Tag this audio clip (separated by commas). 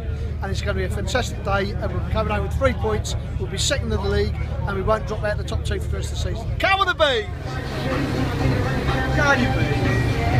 Music, Speech